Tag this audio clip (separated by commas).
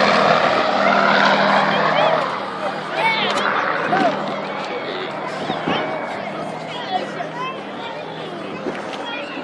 Speech